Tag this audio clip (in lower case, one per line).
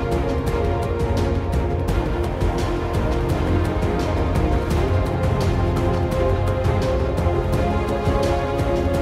music
theme music